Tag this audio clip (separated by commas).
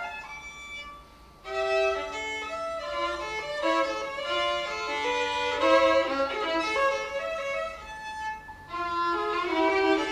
Musical instrument, Bowed string instrument, Music, Violin